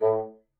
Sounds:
music
woodwind instrument
musical instrument

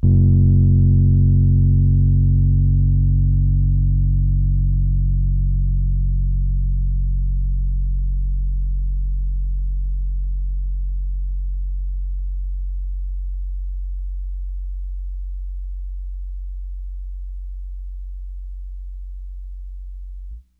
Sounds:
musical instrument
keyboard (musical)
piano
music

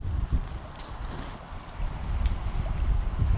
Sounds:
wind

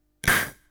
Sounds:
hiss

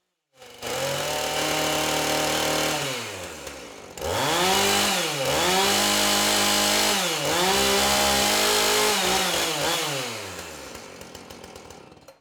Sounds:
tools
sawing
engine

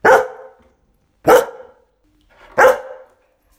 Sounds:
dog
animal
bark
domestic animals

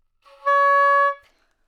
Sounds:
music
woodwind instrument
musical instrument

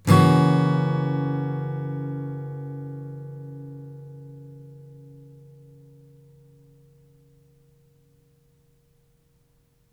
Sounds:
strum
musical instrument
acoustic guitar
music
guitar
plucked string instrument

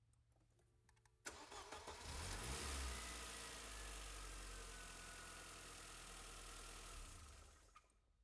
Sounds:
motor vehicle (road)
car
engine
engine starting
vehicle

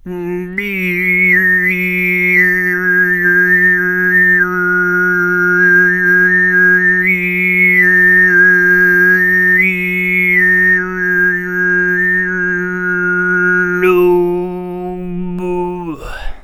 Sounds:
human voice
singing

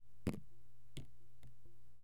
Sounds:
drip
raindrop
rain
water
liquid

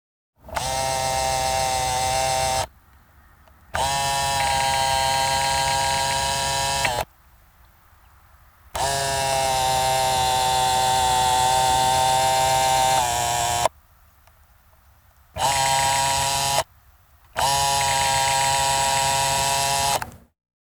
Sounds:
camera
mechanisms

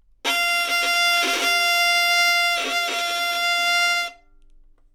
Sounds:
music
musical instrument
bowed string instrument

